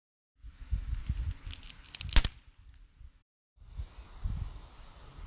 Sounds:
wood, crack

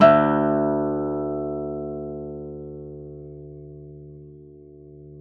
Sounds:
plucked string instrument, musical instrument, acoustic guitar, music, guitar

